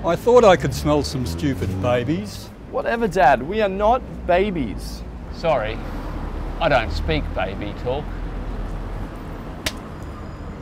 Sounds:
Speech

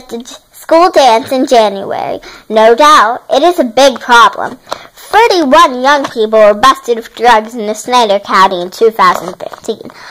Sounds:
Speech

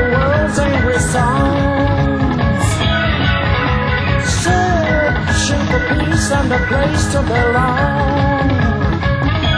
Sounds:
Music

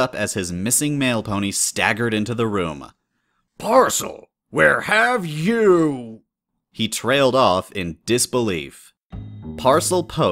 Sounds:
Speech, Music

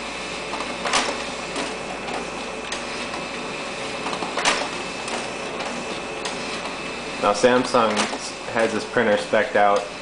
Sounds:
Speech, Printer

